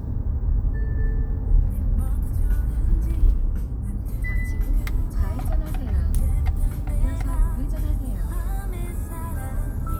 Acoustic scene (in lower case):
car